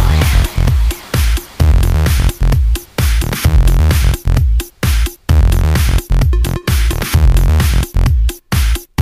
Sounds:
Dance music, Rhythm and blues, Music

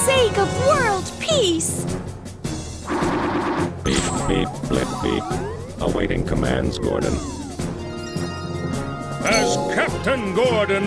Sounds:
Music, Speech

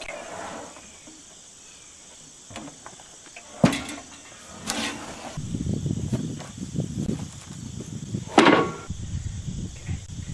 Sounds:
Wood, Speech

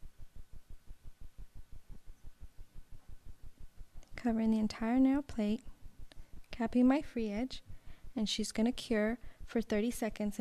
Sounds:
Speech

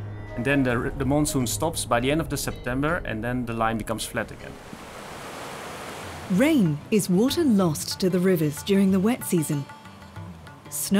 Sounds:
Speech, Water, Music

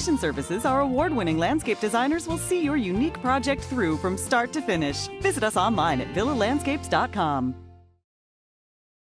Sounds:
Music, Speech

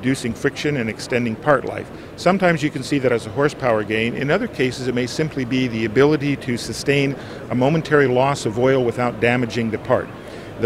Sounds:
Speech

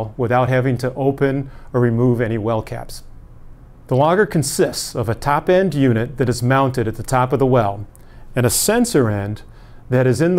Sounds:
Speech

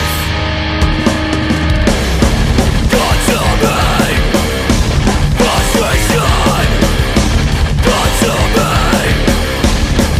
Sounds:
Music, Disco

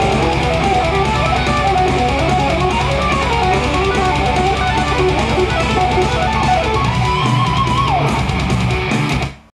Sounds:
Guitar, Plucked string instrument, Bass guitar, Strum, Musical instrument, Music, playing bass guitar

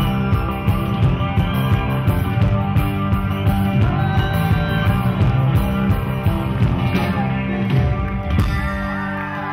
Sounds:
Psychedelic rock, Music

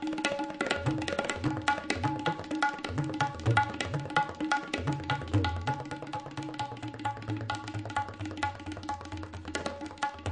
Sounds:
playing tabla

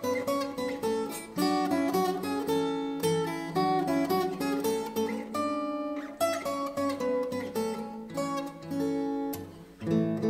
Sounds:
Plucked string instrument, Music, Guitar, Musical instrument

